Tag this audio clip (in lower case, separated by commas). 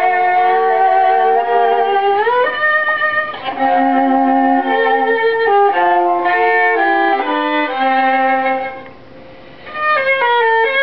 fiddle, music, musical instrument